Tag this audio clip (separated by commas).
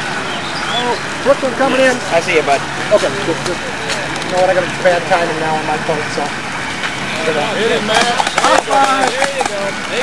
Speech